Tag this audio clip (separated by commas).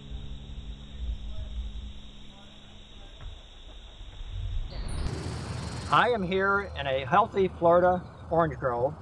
Speech